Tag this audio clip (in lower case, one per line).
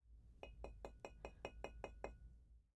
tap
glass